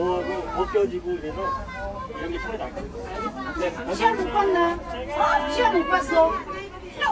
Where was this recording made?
in a park